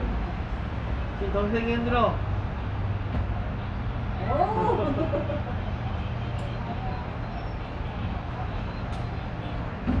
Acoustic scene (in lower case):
residential area